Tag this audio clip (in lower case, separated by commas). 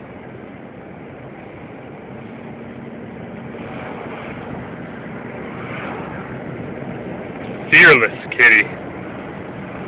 speech